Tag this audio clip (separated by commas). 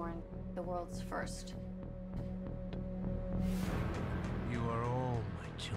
Music, Speech